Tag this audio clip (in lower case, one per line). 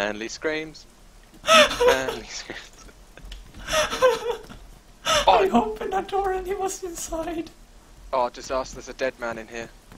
speech